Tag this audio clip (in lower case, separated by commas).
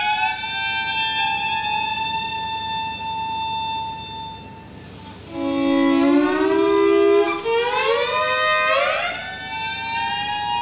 musical instrument, fiddle, music